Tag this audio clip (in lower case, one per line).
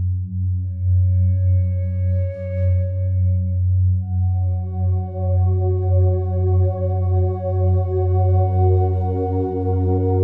music
violin
musical instrument